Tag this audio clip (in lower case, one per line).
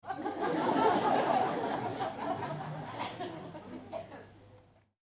crowd
laughter
human voice
human group actions